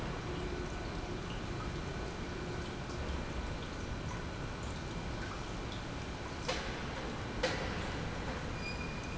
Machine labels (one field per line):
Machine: pump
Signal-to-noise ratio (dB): -6 dB